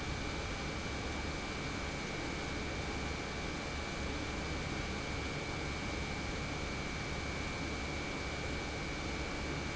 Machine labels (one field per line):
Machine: pump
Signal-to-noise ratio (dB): -6 dB